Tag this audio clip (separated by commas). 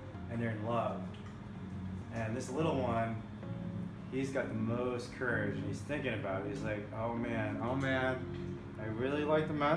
Music, Speech